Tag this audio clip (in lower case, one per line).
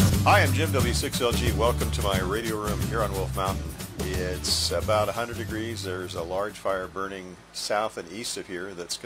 speech
music